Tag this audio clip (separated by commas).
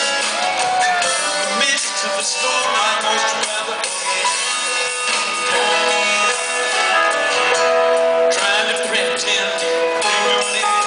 Music